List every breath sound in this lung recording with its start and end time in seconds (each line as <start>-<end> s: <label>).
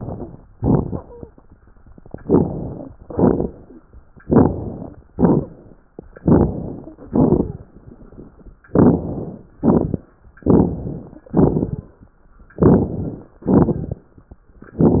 0.00-0.46 s: inhalation
0.00-0.46 s: crackles
0.51-0.99 s: crackles
0.51-1.31 s: exhalation
0.99-1.33 s: wheeze
2.18-2.92 s: inhalation
2.18-2.92 s: crackles
2.98-3.72 s: exhalation
2.98-3.72 s: crackles
4.21-4.95 s: inhalation
4.21-4.95 s: crackles
5.12-5.71 s: exhalation
5.12-5.71 s: crackles
6.19-6.91 s: inhalation
6.19-6.91 s: crackles
7.08-7.68 s: exhalation
7.08-7.68 s: crackles
8.69-9.39 s: inhalation
8.69-9.39 s: crackles
9.56-10.09 s: exhalation
9.56-10.09 s: crackles
10.44-11.23 s: inhalation
10.44-11.23 s: crackles
11.31-12.01 s: exhalation
11.31-12.01 s: crackles
12.56-13.34 s: inhalation
12.56-13.34 s: crackles
13.47-14.08 s: exhalation
13.47-14.08 s: crackles